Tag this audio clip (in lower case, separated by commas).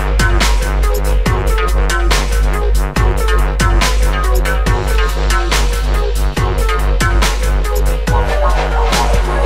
drum and bass, music